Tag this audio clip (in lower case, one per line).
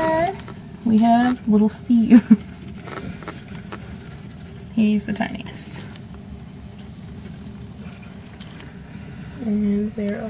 speech